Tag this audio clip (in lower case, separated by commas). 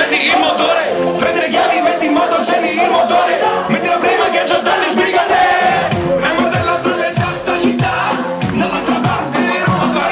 music